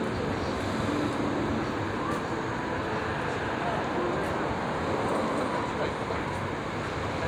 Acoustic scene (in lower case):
street